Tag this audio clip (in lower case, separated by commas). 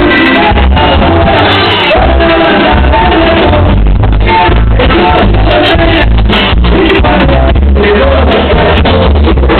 music